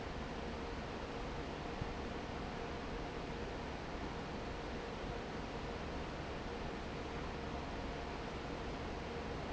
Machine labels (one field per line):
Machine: fan